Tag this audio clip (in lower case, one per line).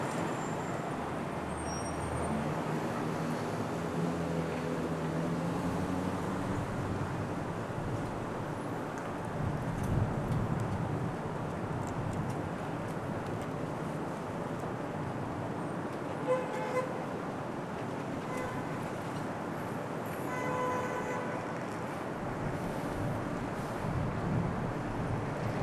motor vehicle (road)
alarm
car
traffic noise
vehicle
vehicle horn